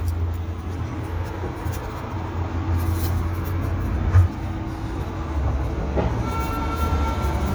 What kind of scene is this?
residential area